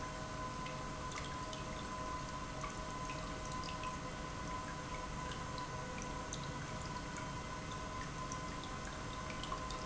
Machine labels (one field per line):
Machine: pump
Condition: normal